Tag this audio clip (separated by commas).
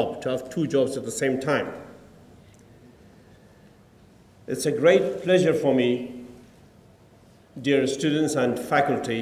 man speaking, Speech